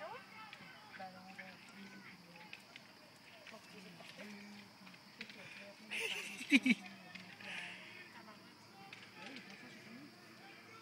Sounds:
speech

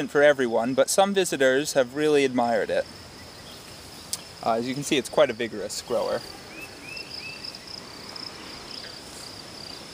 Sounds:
speech

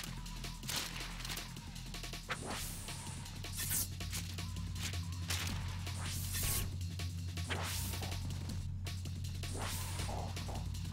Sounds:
music

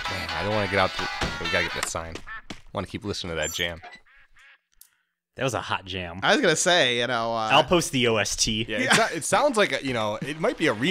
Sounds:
music
speech

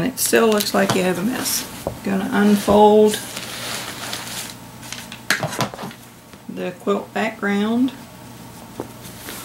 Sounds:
speech

